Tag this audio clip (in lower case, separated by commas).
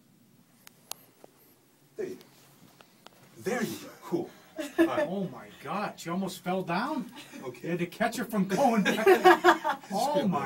speech